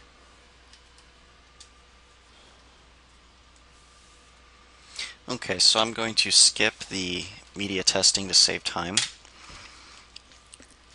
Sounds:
Speech

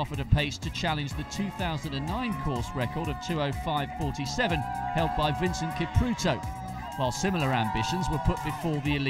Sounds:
Music, Speech, outside, urban or man-made

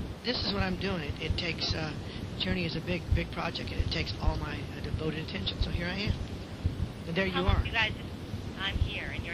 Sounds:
Speech

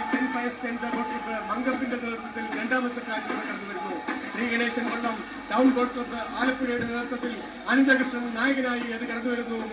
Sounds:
Speech, Vehicle, canoe, Sailboat

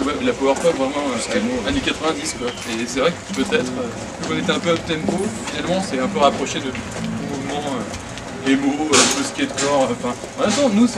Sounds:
Speech

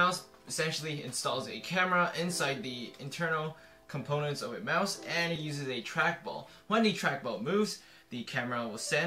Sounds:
Speech

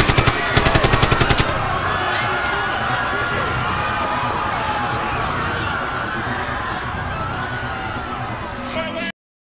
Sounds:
Speech

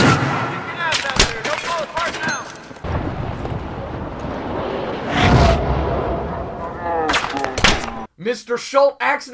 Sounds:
Speech

